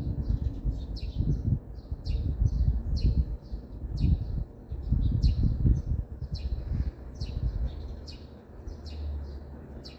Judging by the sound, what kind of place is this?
residential area